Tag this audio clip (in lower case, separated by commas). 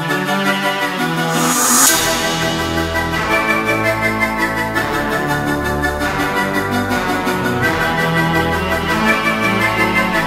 hammond organ, organ